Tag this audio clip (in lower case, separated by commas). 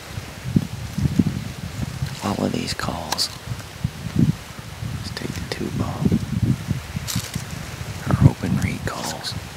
speech